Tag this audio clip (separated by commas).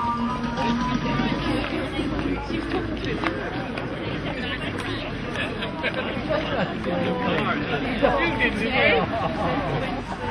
Music, footsteps, Speech